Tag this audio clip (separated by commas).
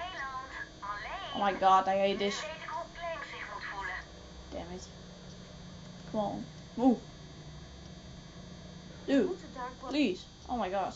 Speech